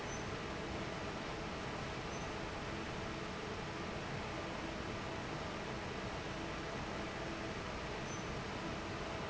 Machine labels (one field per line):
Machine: fan